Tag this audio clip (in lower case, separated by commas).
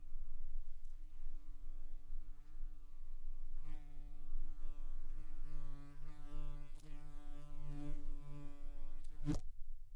buzz, animal, insect, wild animals